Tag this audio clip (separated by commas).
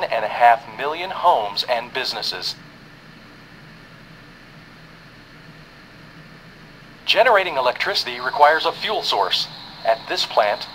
Speech